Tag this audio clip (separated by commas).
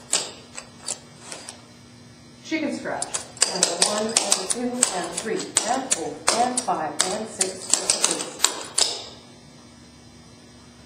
Speech